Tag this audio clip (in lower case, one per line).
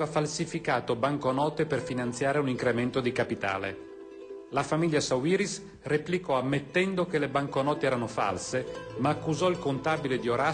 music
speech